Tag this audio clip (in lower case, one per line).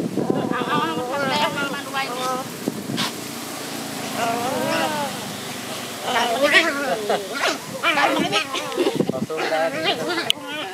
yip
speech